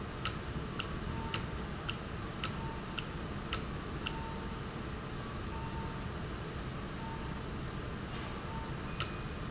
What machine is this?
valve